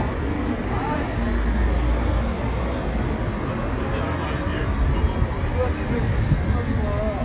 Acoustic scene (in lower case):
street